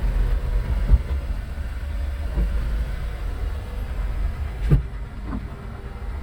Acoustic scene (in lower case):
car